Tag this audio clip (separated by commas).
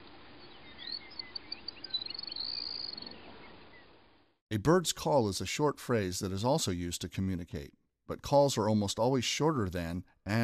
Bird, Chirp, bird call